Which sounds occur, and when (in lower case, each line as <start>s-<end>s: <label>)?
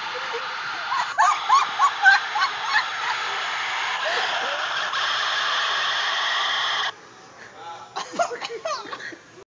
0.0s-9.4s: mechanisms
0.1s-0.5s: laughter
0.8s-1.6s: laughter
1.8s-2.4s: laughter
2.6s-3.1s: laughter
4.0s-4.3s: breathing
4.4s-4.7s: human voice
7.4s-7.5s: breathing
7.5s-7.9s: man speaking
7.9s-9.4s: laughter
7.9s-8.8s: cough